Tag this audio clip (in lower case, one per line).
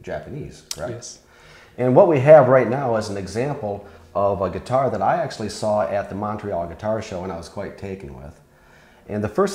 speech